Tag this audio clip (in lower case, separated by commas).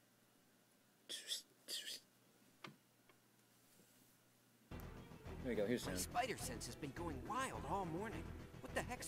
speech, music